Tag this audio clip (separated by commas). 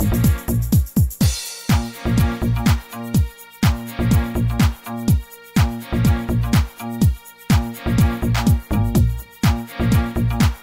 Musical instrument, Music